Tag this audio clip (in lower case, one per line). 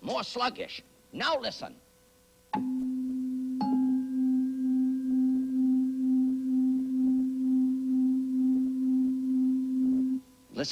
speech